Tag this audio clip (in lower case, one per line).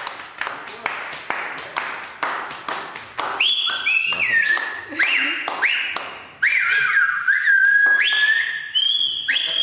speech